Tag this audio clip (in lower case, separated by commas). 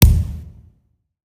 thump